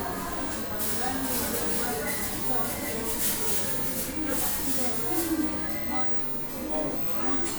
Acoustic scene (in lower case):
cafe